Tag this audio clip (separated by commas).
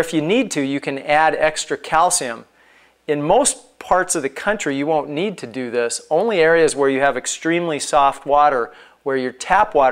Speech